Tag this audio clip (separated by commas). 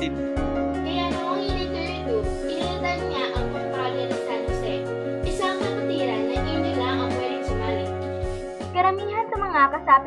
Speech, Music